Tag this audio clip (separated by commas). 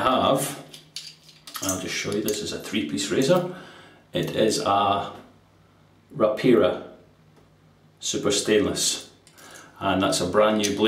Speech